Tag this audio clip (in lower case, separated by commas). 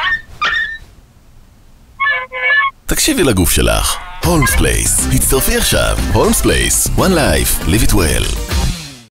music, animal, pets, whimper (dog), yip, dog, speech